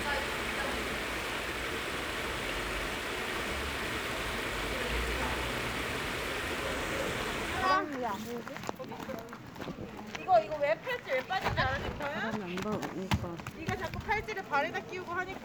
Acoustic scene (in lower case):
park